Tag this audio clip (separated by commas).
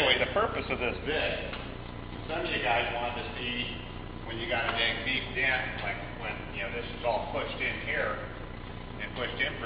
Speech